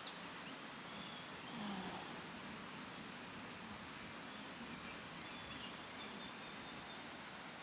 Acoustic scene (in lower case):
park